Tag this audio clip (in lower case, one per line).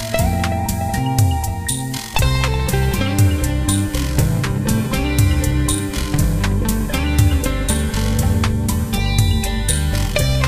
music
guitar
electric guitar
strum
musical instrument
plucked string instrument